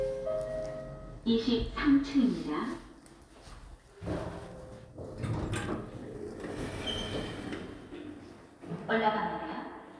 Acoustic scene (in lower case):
elevator